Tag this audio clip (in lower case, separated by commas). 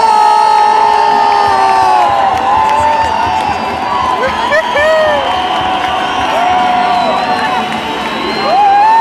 outside, urban or man-made, music